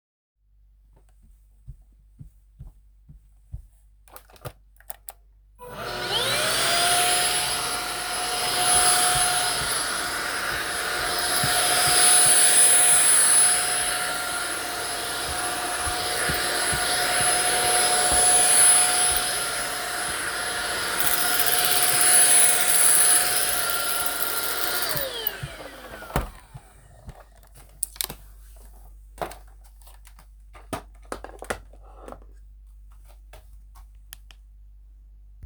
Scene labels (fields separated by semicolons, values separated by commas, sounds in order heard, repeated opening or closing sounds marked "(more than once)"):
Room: living room; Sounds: vacuum cleaner, footsteps